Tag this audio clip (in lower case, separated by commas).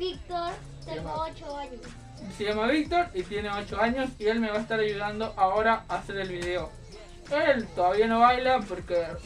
music, speech